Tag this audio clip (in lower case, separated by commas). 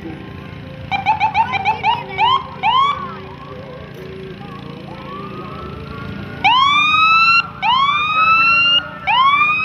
vehicle, motorboat, speech, boat, music